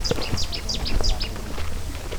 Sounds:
Bird, Animal, Wild animals

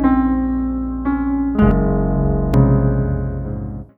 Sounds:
Music, Piano, Keyboard (musical), Musical instrument

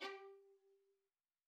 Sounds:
Musical instrument, Music, Bowed string instrument

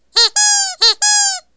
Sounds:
Squeak

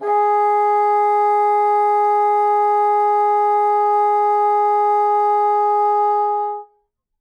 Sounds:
Musical instrument, Music, woodwind instrument

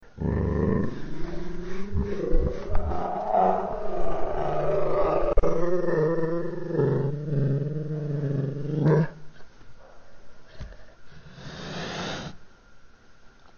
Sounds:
Animal, Growling

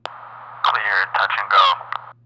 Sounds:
Human voice, man speaking, Speech

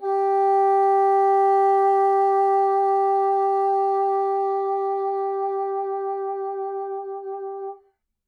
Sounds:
woodwind instrument, Musical instrument, Music

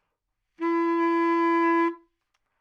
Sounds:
Musical instrument, Wind instrument, Music

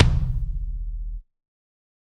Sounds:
Percussion, Drum, Musical instrument, Music, Bass drum

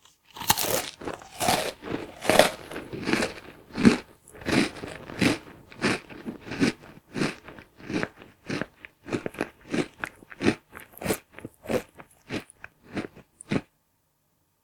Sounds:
Chewing

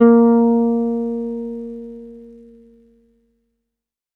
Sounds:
Musical instrument, Plucked string instrument, Guitar, Bass guitar, Music

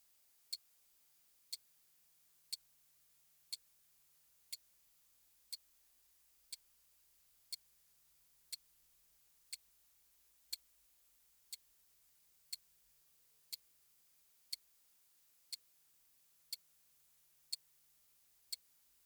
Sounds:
Clock, Mechanisms, Tick-tock

